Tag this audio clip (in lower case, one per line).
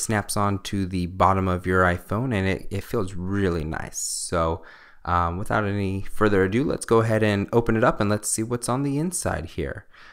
speech